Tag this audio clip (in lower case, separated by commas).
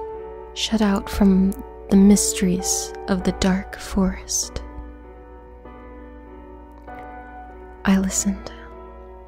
speech, music, background music